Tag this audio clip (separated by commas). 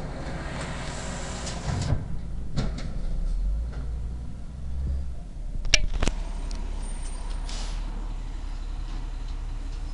Truck, Vehicle